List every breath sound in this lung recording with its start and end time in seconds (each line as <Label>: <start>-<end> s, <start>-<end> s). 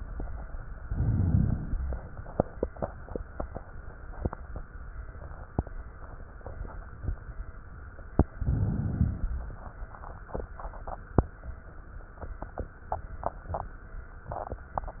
Inhalation: 0.80-1.72 s, 8.13-8.97 s
Exhalation: 1.66-3.64 s, 8.95-11.23 s
Crackles: 0.80-1.70 s, 1.70-3.64 s, 8.09-8.95 s, 8.95-11.23 s